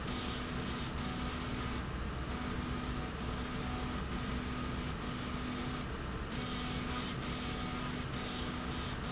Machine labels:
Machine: slide rail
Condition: abnormal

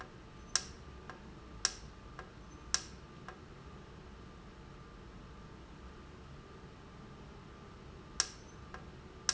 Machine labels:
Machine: valve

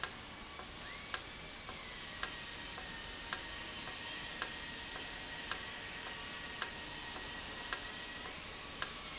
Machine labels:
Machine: valve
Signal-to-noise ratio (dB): 0 dB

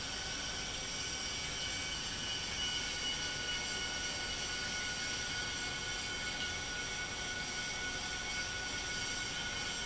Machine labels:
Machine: pump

